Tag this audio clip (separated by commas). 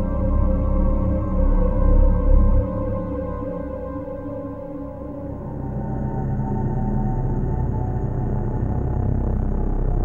Music, Scary music